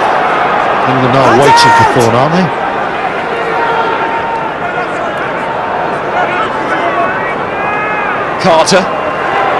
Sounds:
Speech

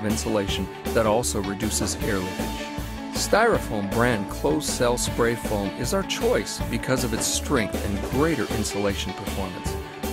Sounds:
Speech, Music

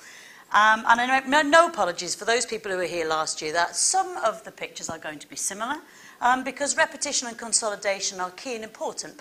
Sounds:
Speech

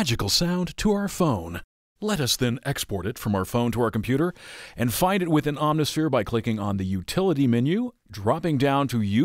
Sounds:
Speech

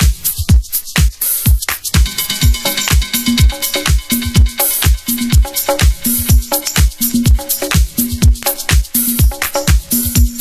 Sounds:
Music

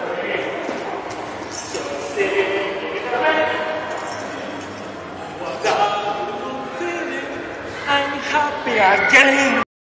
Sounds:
Male singing

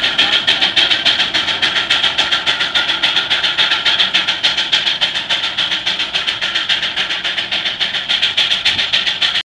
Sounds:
Heavy engine (low frequency), Engine

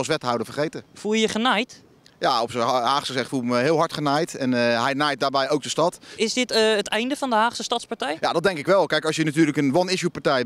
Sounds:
Speech

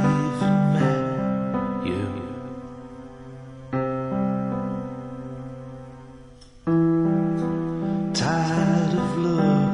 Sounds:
Music

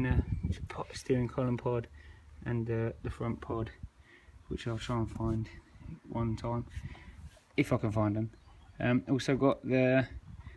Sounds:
Speech

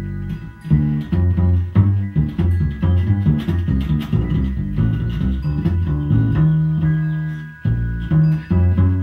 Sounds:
Music, Double bass, Bowed string instrument, playing double bass, Musical instrument

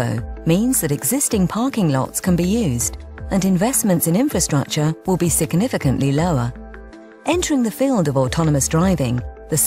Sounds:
Music, Speech

